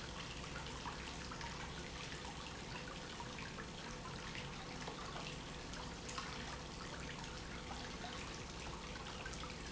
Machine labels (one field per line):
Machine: pump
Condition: normal